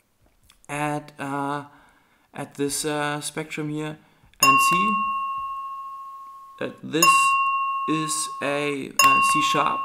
A man speaks followed by a chiming sound